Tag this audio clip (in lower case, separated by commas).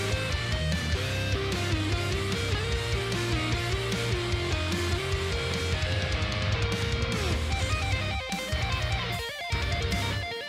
music, musical instrument, plucked string instrument, strum, electric guitar, guitar, acoustic guitar